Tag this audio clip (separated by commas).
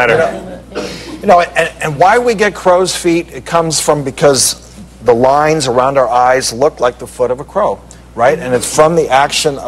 Speech